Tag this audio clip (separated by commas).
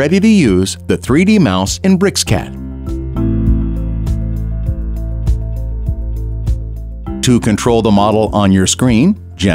Music, Speech